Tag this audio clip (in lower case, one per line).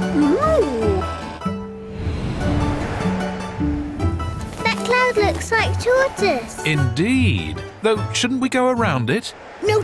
speech
music